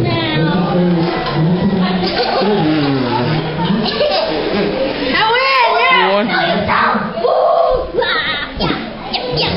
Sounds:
speech
kid speaking

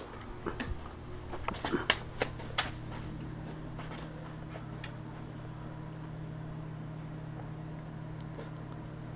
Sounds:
mechanical fan

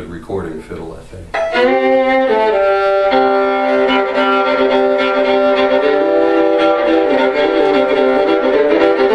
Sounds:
bowed string instrument
musical instrument
violin
music
speech

